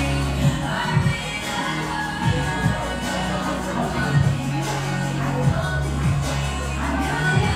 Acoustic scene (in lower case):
cafe